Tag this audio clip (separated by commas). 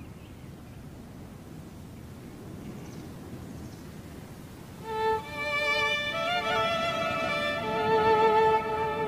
Music, Sad music